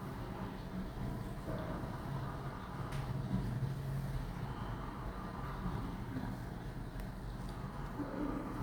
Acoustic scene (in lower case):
elevator